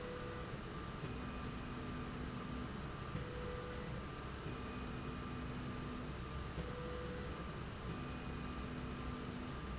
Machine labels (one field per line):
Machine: slide rail